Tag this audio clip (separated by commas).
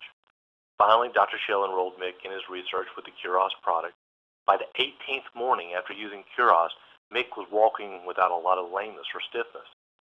Speech